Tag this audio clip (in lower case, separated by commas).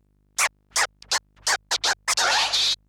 musical instrument, scratching (performance technique), music